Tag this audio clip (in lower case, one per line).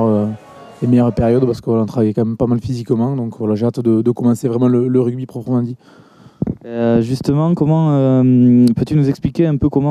speech